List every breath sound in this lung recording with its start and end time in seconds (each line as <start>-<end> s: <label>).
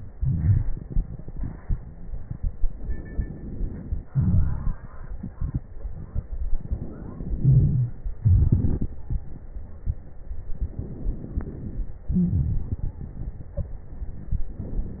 0.09-2.67 s: exhalation
2.68-4.03 s: crackles
2.69-4.06 s: inhalation
4.06-6.57 s: exhalation
4.06-6.57 s: crackles
6.58-8.16 s: inhalation
7.39-7.98 s: wheeze
8.18-10.27 s: exhalation
8.20-10.23 s: crackles
10.25-12.08 s: inhalation
10.25-12.08 s: crackles
12.07-12.67 s: wheeze
12.07-14.55 s: exhalation
13.52-13.76 s: stridor